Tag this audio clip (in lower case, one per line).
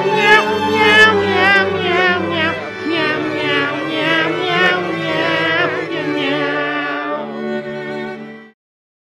music